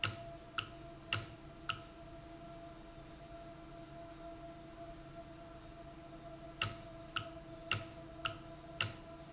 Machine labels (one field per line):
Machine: valve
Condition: normal